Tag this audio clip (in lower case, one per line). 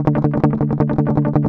musical instrument
music
strum
plucked string instrument
guitar